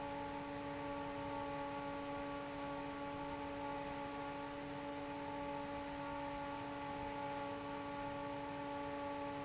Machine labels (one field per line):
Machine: fan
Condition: normal